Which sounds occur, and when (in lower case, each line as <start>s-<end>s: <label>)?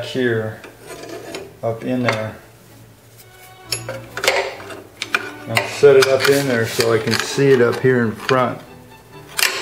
0.0s-0.7s: male speech
0.0s-9.6s: mechanisms
0.6s-0.8s: generic impact sounds
0.9s-1.5s: generic impact sounds
1.6s-2.4s: male speech
3.1s-3.5s: generic impact sounds
3.7s-4.0s: generic impact sounds
4.2s-4.8s: generic impact sounds
5.0s-8.7s: generic impact sounds
5.5s-8.6s: male speech
9.4s-9.6s: generic impact sounds